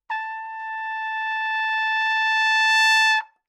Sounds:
brass instrument
music
trumpet
musical instrument

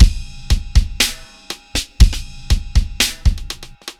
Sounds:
percussion
drum kit
music
musical instrument

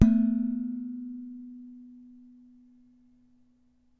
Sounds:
dishes, pots and pans
home sounds

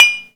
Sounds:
home sounds
dishes, pots and pans

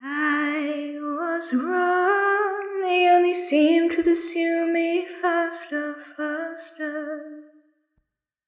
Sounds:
human voice
singing
female singing

